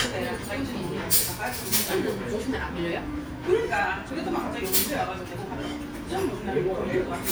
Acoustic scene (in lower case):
restaurant